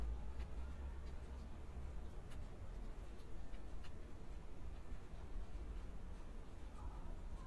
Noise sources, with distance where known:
background noise

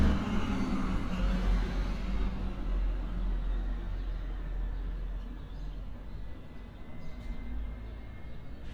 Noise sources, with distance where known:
large-sounding engine, far

